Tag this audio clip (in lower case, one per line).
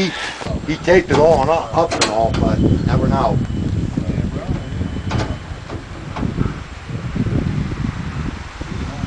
speech